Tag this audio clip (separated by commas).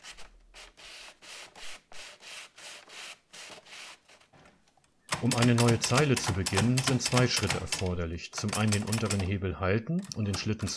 typing on typewriter